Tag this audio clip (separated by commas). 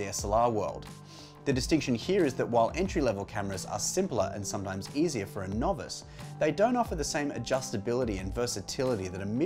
Speech